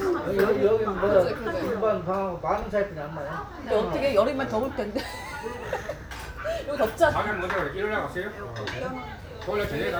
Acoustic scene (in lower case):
restaurant